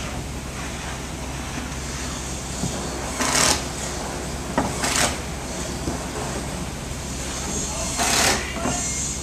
A loud hum in the background is punctuated with some kind of ruffling noise and a shuffle